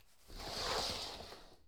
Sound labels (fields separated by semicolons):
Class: furniture moving; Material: wooden; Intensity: medium